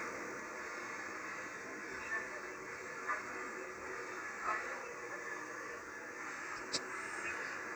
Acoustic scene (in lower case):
subway train